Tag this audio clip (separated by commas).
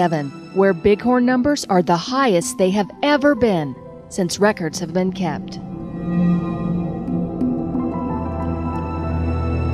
Music, Speech